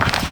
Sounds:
Walk

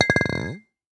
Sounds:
clink, Glass

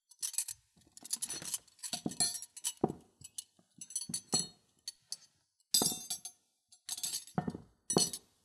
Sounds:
Cutlery, home sounds

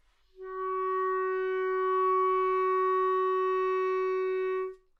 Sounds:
Musical instrument, Music, woodwind instrument

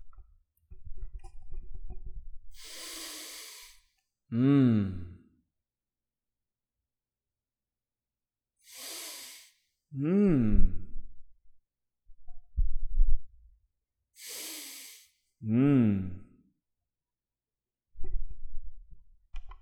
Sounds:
Respiratory sounds

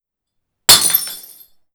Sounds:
Glass, Shatter

